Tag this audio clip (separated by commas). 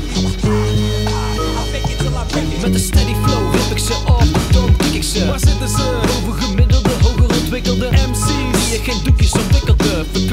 Music